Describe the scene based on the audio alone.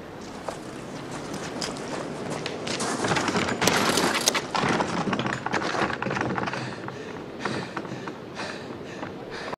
A man hitting a door and breathing heavily